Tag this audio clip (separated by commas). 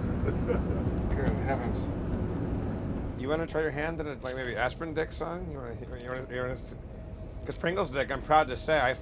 Speech